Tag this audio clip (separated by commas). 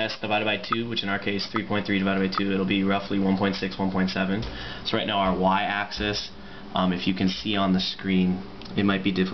Speech